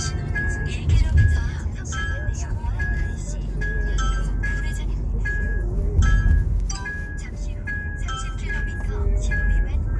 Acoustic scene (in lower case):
car